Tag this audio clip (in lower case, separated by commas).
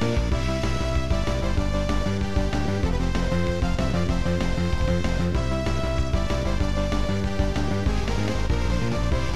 music, theme music, video game music